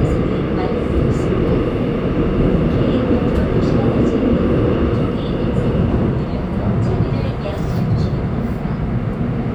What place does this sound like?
subway train